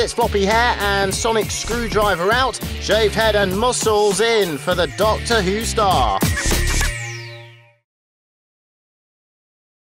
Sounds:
music
speech

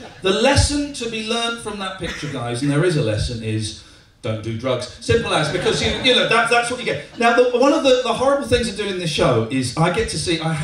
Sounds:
speech

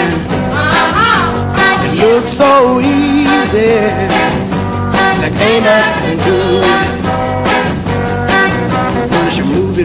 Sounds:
music
male singing

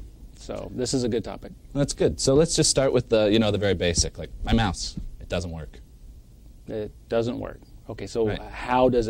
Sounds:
speech

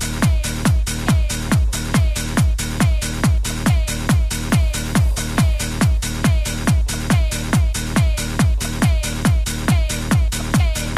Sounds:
music

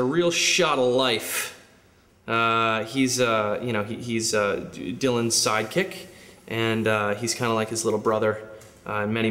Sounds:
speech

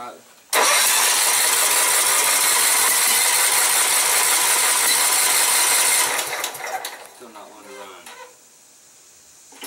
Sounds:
lawn mower
speech

